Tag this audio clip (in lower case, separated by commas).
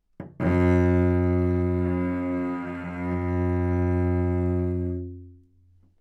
music, bowed string instrument, musical instrument